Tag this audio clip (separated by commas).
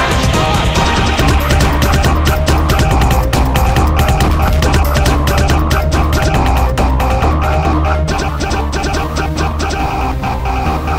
Music, Electronic music